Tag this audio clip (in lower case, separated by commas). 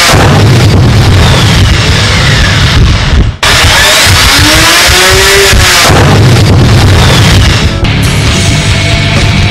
music, outside, rural or natural